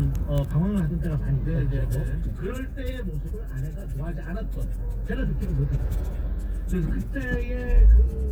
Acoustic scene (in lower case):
car